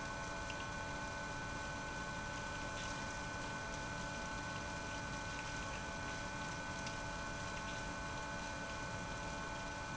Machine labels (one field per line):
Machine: pump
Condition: abnormal